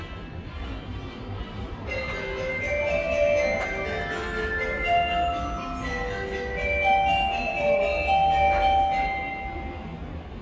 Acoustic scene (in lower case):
subway station